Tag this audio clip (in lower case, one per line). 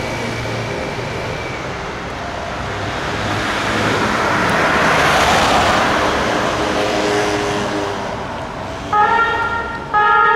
ambulance siren